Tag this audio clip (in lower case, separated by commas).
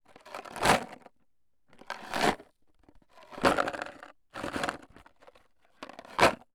rattle